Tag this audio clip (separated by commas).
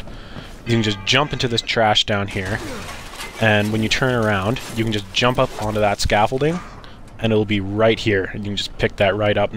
Speech